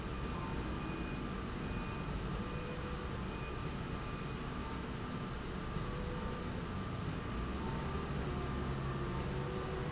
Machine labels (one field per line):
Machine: slide rail